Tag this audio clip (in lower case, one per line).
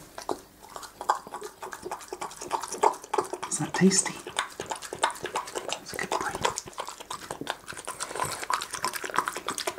dog
domestic animals
animal
speech
chewing
inside a small room